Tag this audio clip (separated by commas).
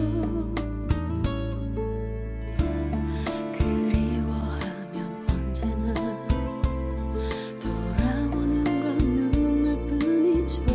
Music